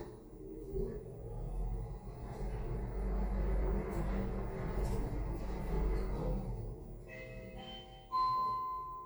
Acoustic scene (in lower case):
elevator